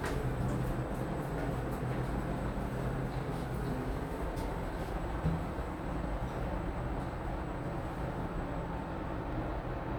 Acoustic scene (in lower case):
elevator